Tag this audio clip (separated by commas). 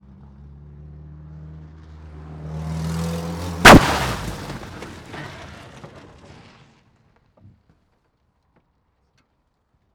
Vehicle, Motor vehicle (road), Car